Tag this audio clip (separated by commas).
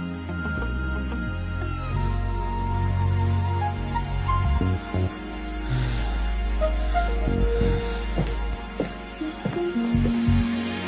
Music